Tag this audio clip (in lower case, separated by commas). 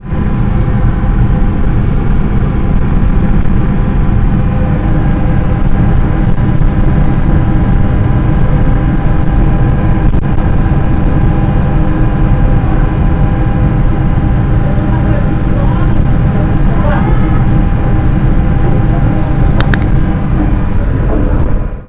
water vehicle, vehicle